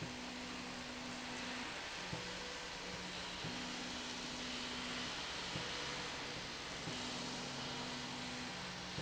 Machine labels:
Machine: slide rail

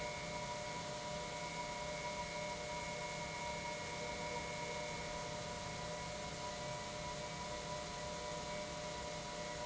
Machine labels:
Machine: pump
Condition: normal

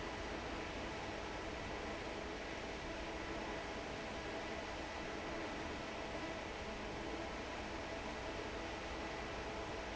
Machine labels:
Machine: fan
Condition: normal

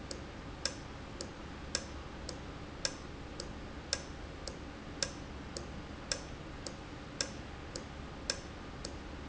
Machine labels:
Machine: valve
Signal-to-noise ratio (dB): 0 dB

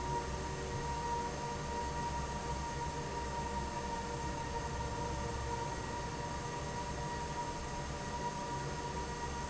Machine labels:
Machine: fan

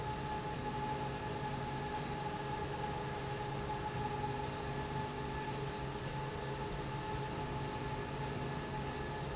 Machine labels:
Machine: slide rail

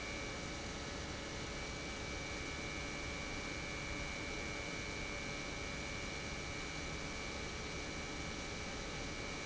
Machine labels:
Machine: pump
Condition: normal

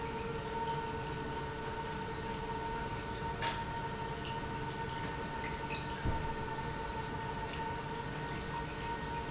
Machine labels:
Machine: pump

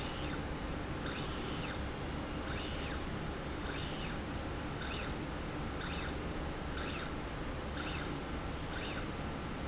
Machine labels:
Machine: slide rail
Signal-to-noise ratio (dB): -6 dB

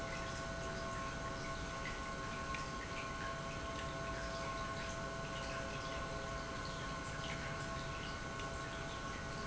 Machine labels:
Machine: pump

